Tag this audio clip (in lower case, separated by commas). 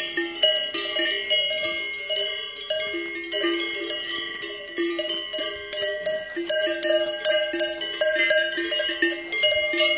cattle